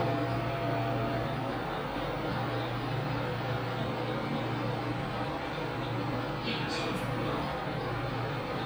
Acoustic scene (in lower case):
elevator